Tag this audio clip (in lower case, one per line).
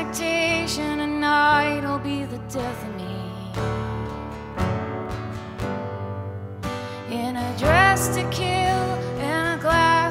music